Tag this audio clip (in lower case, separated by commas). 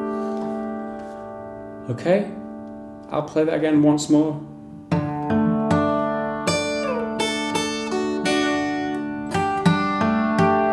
musical instrument, guitar, plucked string instrument, acoustic guitar